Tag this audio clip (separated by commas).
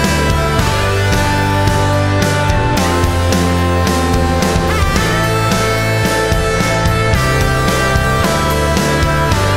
Tick